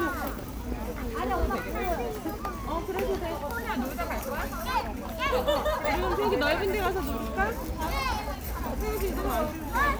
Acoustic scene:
park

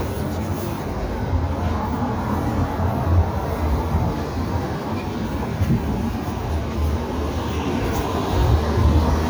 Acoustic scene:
street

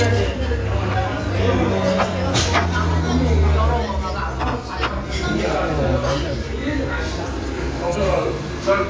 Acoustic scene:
restaurant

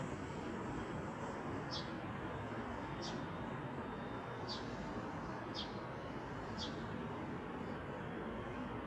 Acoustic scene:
residential area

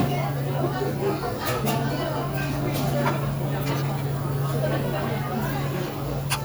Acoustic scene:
restaurant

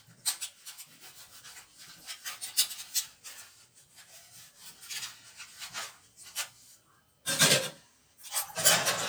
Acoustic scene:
kitchen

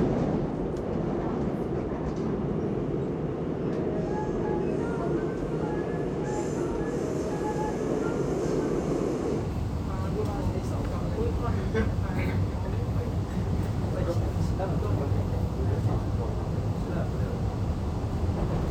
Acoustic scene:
subway train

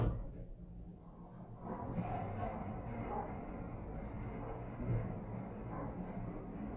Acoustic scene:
elevator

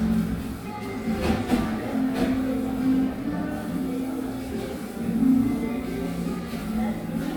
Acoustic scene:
cafe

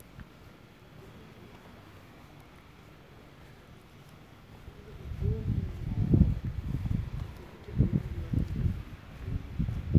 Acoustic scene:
residential area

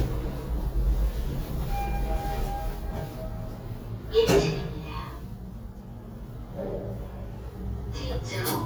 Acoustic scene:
elevator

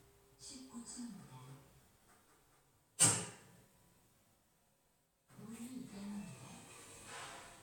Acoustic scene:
elevator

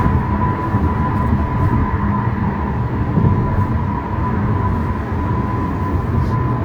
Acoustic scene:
car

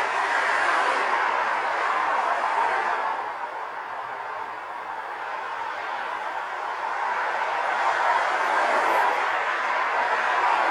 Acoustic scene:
street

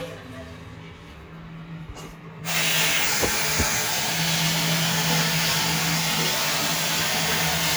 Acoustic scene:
restroom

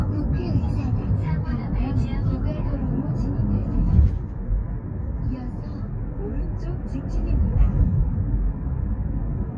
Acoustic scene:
car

